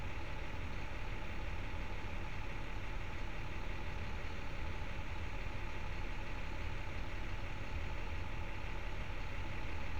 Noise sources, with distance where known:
large-sounding engine, near

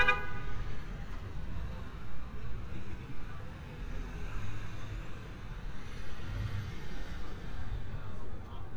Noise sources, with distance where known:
engine of unclear size; car horn, near; person or small group talking, far

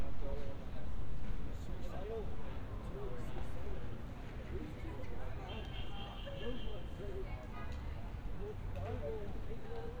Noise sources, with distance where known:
car horn; person or small group talking

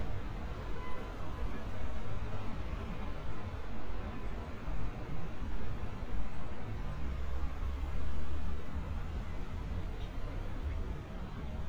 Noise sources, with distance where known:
car horn, far

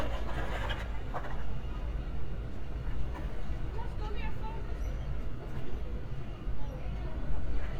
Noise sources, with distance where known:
person or small group talking

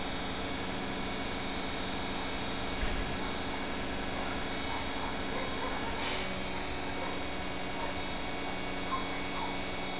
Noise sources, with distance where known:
dog barking or whining, far

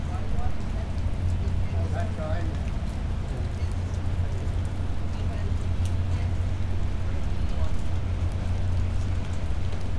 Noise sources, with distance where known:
person or small group talking, near

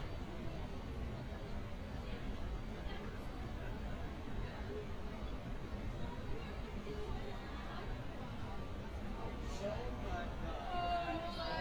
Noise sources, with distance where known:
person or small group talking, far

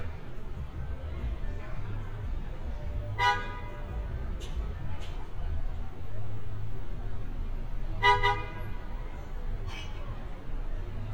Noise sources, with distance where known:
car horn, near

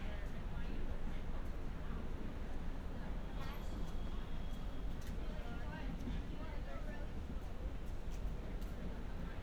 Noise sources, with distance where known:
person or small group talking, far

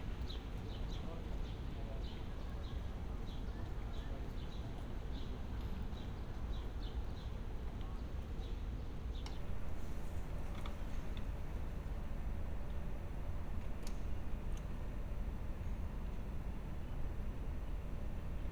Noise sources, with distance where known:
background noise

